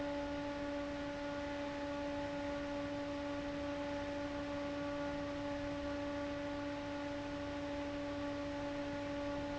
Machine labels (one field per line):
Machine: fan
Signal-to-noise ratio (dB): 6 dB